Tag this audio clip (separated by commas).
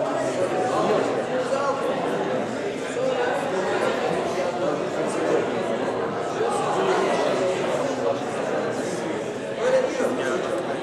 Speech